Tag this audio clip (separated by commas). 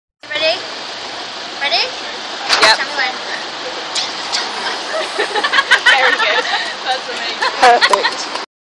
Speech, Vehicle